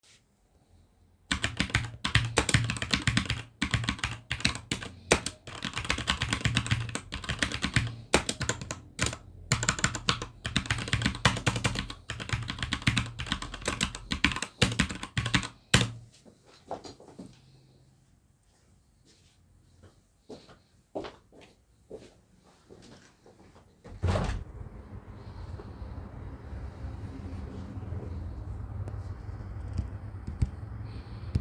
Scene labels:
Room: bedroom; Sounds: keyboard typing, footsteps, window

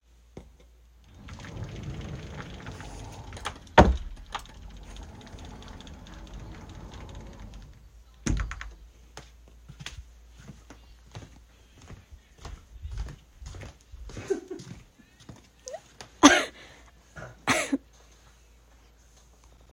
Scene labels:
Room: bedroom; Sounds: wardrobe or drawer, footsteps

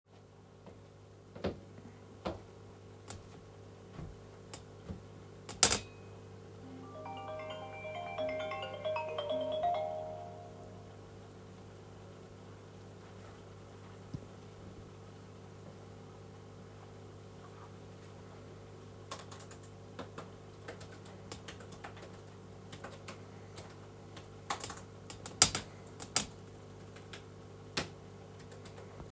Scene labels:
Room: bedroom; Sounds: footsteps, phone ringing, keyboard typing

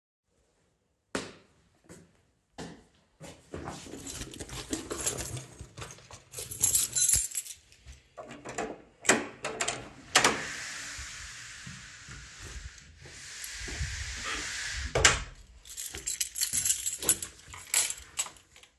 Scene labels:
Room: living room; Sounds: footsteps, keys, door

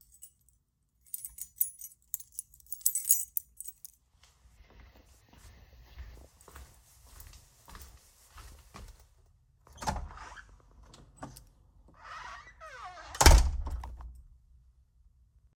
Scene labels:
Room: hallway; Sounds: keys, footsteps, door (more than once)

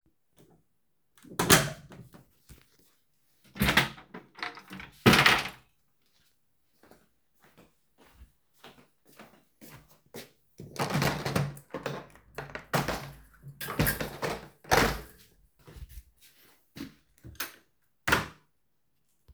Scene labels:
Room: living room; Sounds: door, wardrobe or drawer, footsteps, window

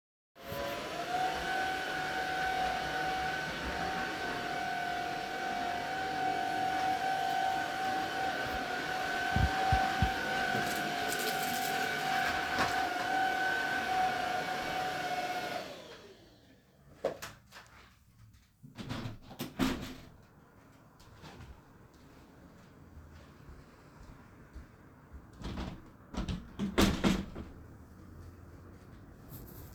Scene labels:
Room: living room; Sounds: vacuum cleaner, footsteps, window (more than once)

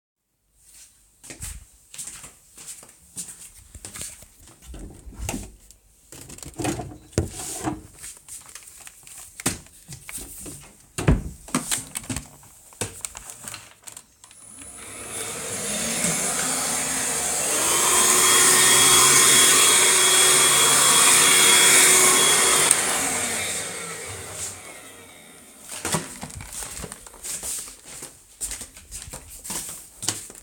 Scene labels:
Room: hallway; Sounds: footsteps, wardrobe or drawer (more than once), vacuum cleaner

